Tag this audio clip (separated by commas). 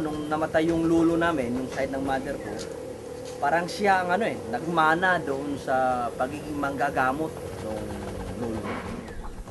Fowl, Speech